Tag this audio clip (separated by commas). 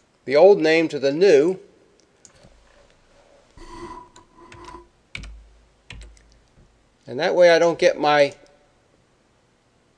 Speech